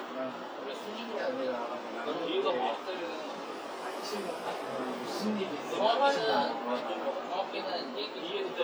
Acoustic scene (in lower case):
crowded indoor space